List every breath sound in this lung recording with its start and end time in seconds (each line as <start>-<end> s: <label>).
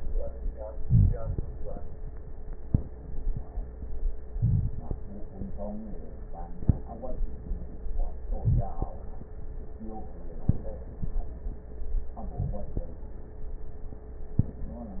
0.79-1.44 s: inhalation
0.79-1.44 s: crackles
4.34-5.00 s: inhalation
4.34-5.00 s: crackles
8.32-8.97 s: inhalation
8.32-8.97 s: crackles
12.15-12.80 s: inhalation
12.15-12.80 s: crackles